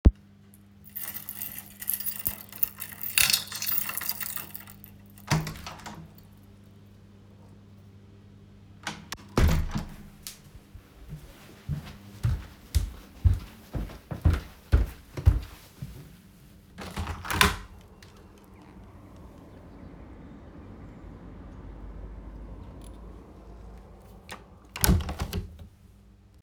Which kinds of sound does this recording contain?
keys, door, footsteps, window